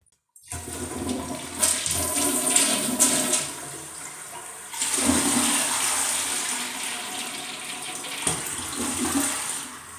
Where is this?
in a restroom